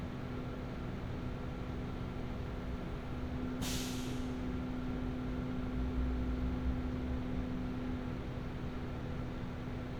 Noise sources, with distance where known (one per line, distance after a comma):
engine of unclear size